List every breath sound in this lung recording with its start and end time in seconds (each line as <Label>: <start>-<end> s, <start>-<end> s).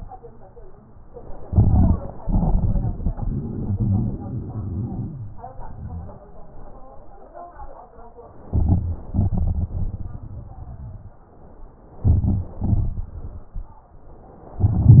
Inhalation: 1.49-2.03 s, 8.48-9.08 s, 12.03-12.56 s, 14.55-15.00 s
Exhalation: 2.16-5.31 s, 9.12-11.22 s, 12.58-13.84 s
Wheeze: 3.15-5.31 s
Crackles: 8.48-9.08 s